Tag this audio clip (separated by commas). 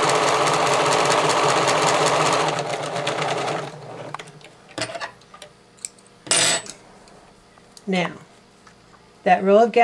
Speech, Sewing machine